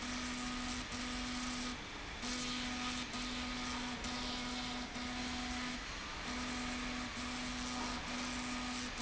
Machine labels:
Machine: slide rail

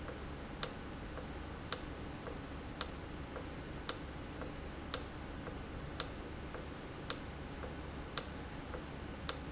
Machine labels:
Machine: valve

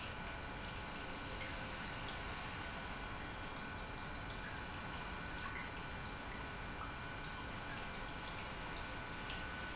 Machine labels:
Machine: pump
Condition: normal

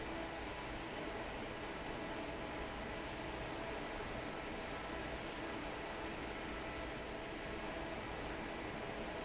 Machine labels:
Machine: fan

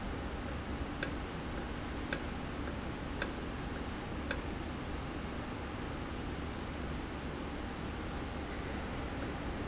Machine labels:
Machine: valve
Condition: normal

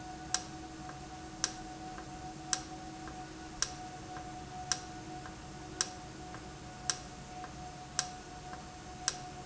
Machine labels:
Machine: valve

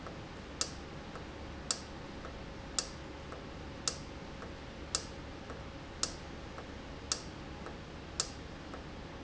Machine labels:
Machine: valve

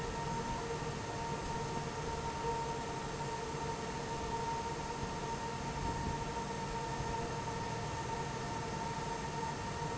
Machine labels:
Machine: fan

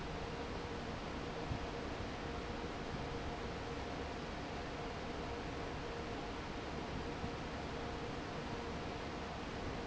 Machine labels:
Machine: fan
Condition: normal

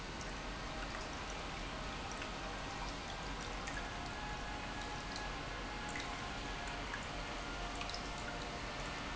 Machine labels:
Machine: pump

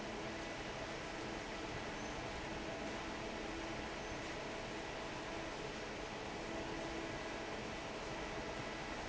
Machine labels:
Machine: fan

